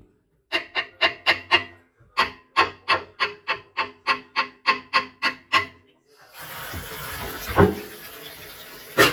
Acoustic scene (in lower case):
kitchen